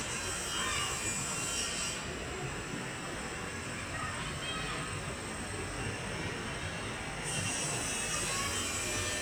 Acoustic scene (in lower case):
residential area